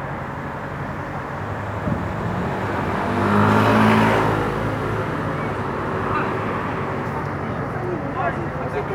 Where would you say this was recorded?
on a street